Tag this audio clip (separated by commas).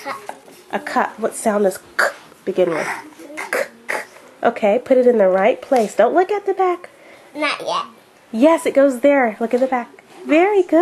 Child speech, Speech